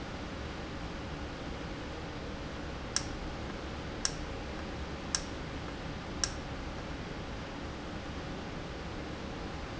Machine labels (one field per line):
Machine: valve